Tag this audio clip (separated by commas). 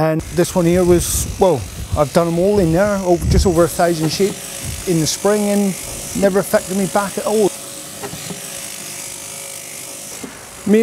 electric razor, Speech